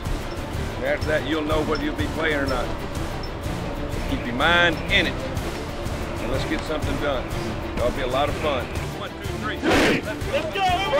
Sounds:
music
speech

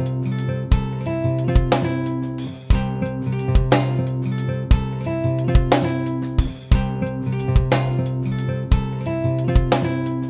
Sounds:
music

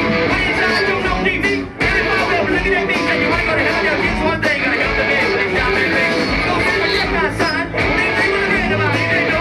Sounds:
music

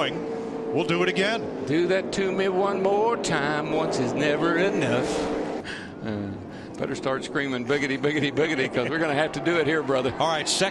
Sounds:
speech

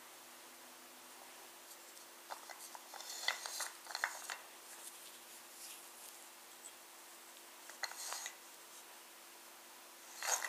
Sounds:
inside a small room

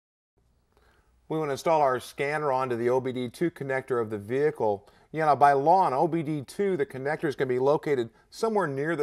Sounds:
speech

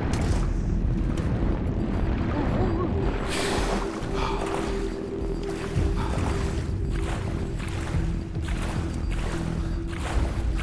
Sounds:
music
outside, rural or natural

